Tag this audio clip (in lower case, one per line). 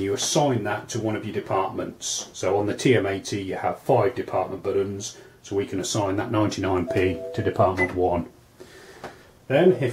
speech